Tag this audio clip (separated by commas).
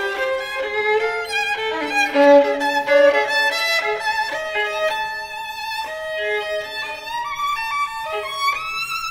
Sad music, Music